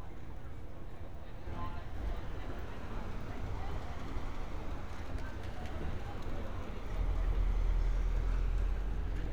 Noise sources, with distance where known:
person or small group talking, far

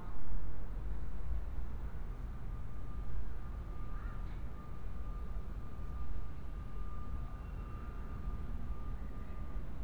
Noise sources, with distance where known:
unidentified alert signal, far

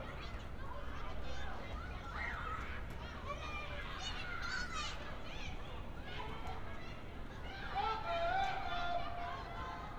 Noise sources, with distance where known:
person or small group shouting, far

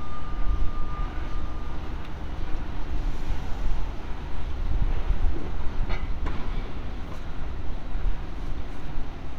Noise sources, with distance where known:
reverse beeper, far

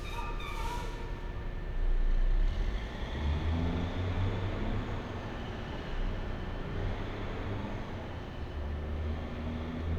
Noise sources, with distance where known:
large-sounding engine, far

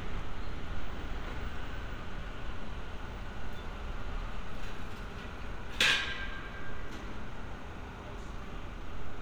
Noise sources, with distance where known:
unidentified impact machinery, near

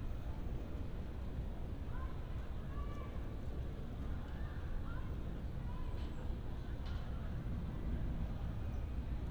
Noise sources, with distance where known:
person or small group shouting, far

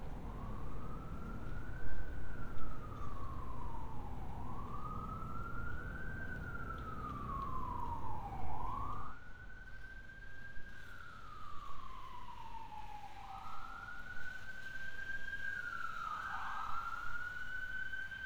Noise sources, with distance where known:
siren, far

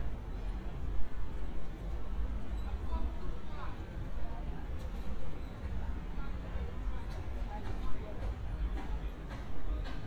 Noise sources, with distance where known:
person or small group shouting

